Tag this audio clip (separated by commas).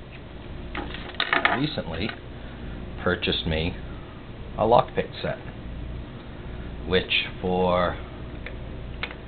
Speech